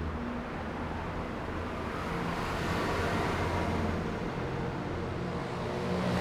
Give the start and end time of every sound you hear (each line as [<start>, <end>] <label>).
[0.00, 6.21] bus
[0.00, 6.21] bus engine accelerating
[0.00, 6.21] car
[0.00, 6.21] car wheels rolling
[5.05, 6.21] motorcycle
[5.05, 6.21] motorcycle engine accelerating